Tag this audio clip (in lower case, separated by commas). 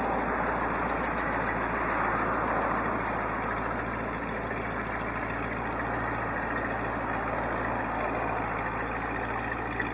engine, vehicle, motor vehicle (road)